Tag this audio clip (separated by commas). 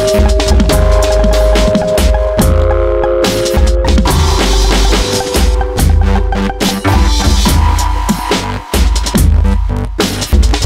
Electronic music, Drum and bass, Music